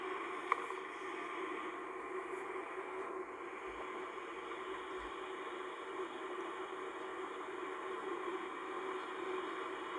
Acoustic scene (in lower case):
car